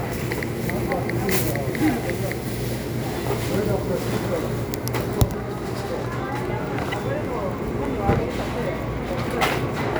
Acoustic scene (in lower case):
crowded indoor space